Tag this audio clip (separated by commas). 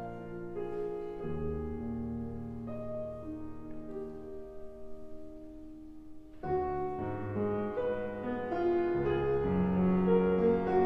Music, Piano, Musical instrument